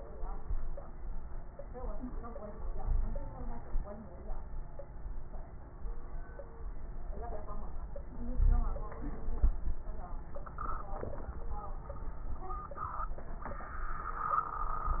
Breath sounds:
2.76-3.27 s: inhalation
2.76-3.27 s: wheeze
8.32-8.83 s: inhalation
8.32-8.83 s: wheeze

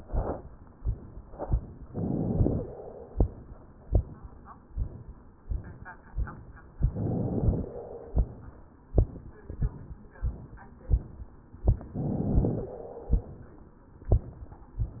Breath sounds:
1.84-2.71 s: inhalation
2.64-3.70 s: exhalation
6.83-7.71 s: inhalation
7.72-8.77 s: exhalation
11.93-12.72 s: inhalation
12.71-13.76 s: exhalation

